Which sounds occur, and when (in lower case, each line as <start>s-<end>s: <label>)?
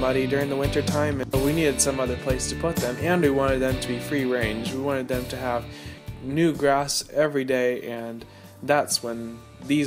0.0s-9.8s: music
0.2s-1.7s: male speech
1.8s-2.1s: breathing
2.1s-9.2s: male speech
9.3s-9.7s: breathing